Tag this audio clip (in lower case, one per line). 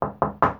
home sounds
wood
knock
door